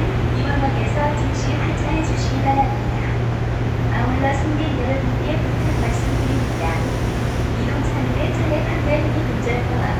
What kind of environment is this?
subway train